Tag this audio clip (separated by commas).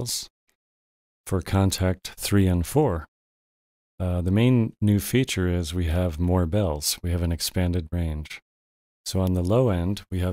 Speech